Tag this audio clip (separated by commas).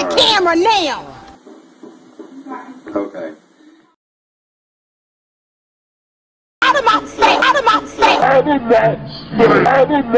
Speech